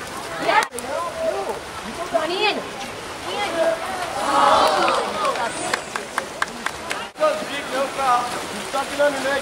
A stream is flowing while a crowd claps